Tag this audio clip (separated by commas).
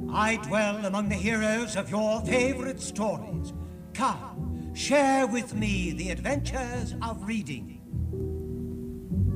Music, Speech